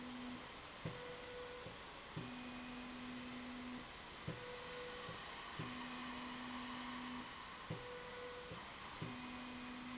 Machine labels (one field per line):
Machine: slide rail